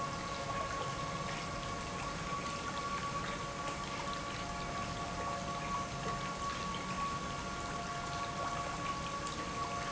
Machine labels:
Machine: pump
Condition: normal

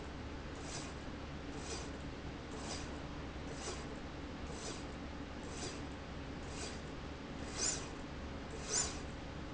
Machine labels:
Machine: slide rail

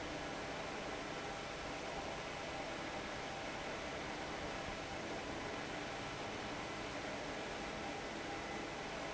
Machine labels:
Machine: fan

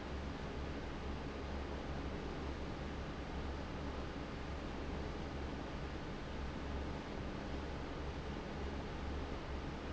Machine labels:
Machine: fan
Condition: abnormal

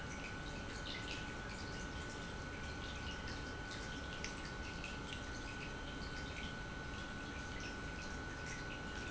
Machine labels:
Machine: pump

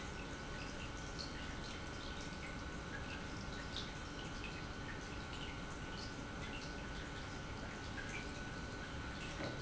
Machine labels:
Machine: pump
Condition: normal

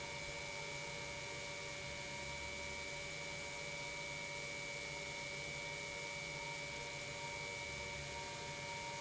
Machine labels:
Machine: pump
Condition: normal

